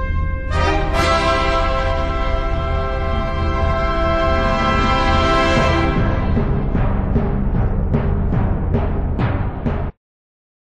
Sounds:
Music

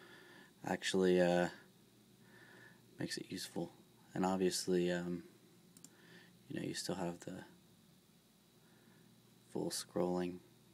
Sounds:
Speech

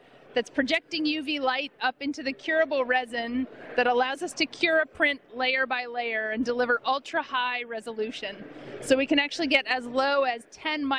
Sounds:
Speech

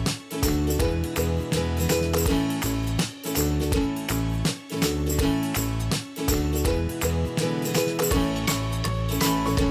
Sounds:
Music

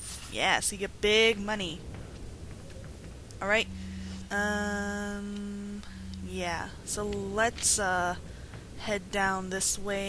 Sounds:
Speech

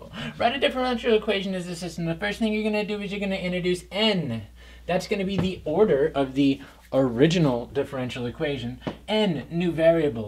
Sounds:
Speech

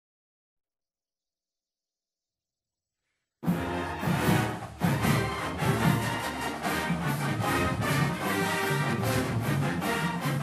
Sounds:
Music

